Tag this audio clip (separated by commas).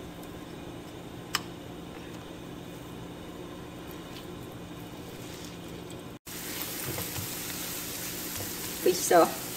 Sizzle, Frying (food)